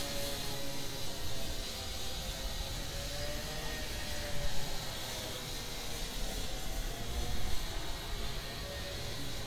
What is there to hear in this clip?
small or medium rotating saw